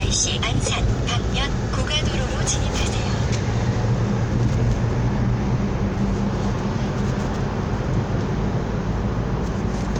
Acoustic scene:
car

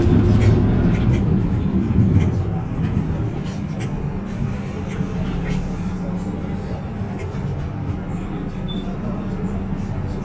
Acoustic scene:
bus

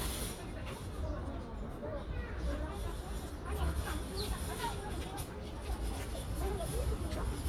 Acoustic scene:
residential area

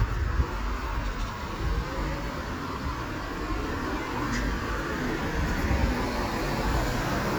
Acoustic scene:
street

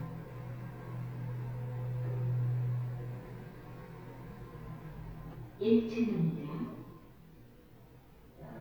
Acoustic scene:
elevator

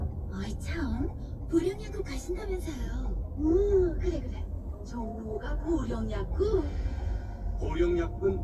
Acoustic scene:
car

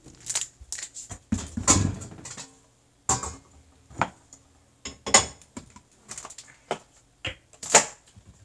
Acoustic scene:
kitchen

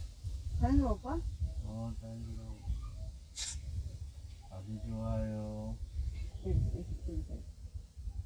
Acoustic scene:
park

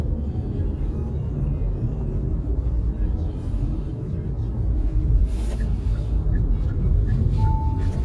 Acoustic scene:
car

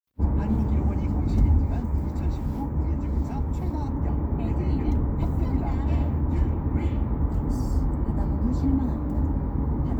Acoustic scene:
car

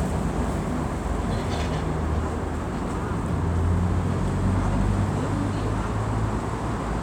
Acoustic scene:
street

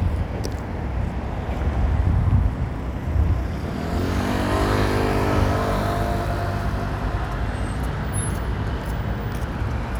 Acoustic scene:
street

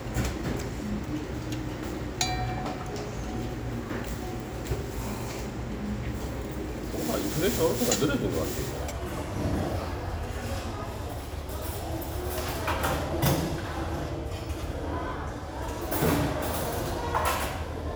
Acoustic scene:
restaurant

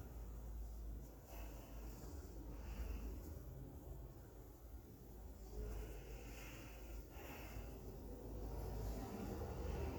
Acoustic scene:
elevator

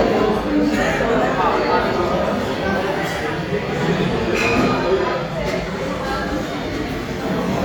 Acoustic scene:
crowded indoor space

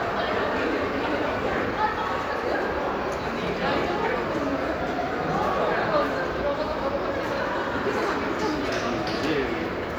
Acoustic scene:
crowded indoor space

